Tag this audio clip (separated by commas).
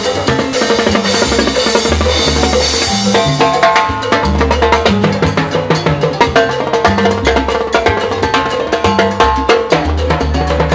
playing timbales